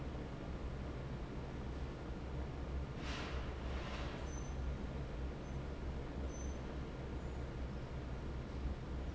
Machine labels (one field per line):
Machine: fan